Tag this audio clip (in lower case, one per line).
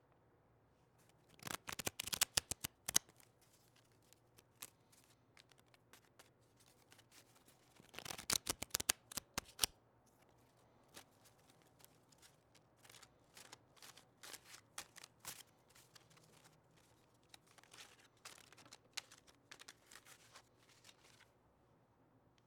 domestic sounds